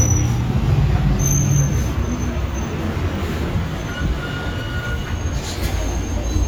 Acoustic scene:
street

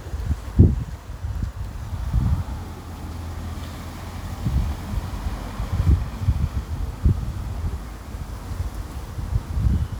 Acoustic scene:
residential area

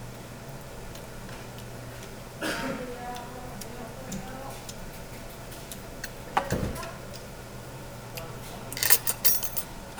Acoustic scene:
restaurant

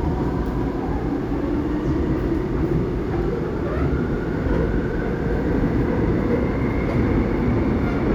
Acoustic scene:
subway train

